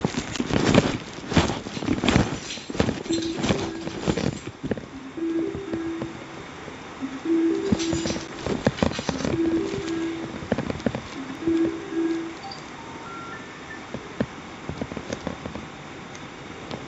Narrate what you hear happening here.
I was walking towards my car. Then I took out my keys to open it but somebody called me on my phone, so I took it out to accept the call.